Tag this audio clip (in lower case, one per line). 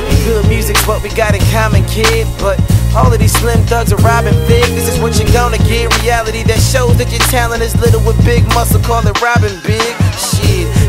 music
dance music